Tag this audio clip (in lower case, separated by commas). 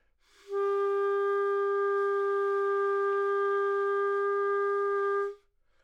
woodwind instrument, music, musical instrument